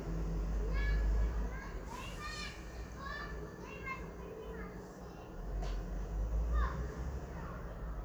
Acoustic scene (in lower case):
residential area